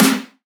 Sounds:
Snare drum, Percussion, Music, Drum, Musical instrument

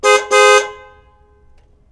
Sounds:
Car, Alarm, car horn, Motor vehicle (road), Vehicle

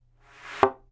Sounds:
thud

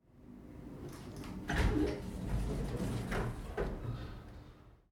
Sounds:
Door, Sliding door, Domestic sounds

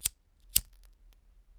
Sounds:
Fire

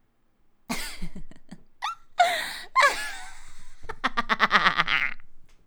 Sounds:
Laughter, Giggle, Human voice

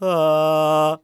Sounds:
Human voice, Male singing, Singing

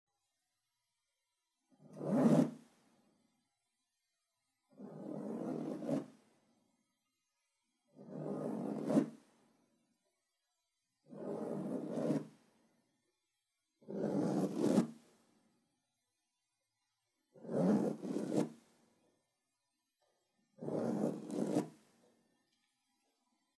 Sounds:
Zipper (clothing), Domestic sounds

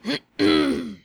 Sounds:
Cough, Respiratory sounds

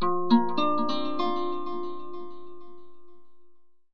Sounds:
Guitar, Plucked string instrument, Music, Musical instrument

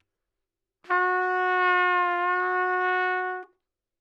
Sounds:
Trumpet, Brass instrument, Musical instrument, Music

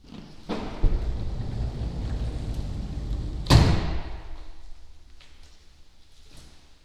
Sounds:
Slam, home sounds, Door, Sliding door

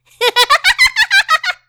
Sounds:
Laughter, Human voice

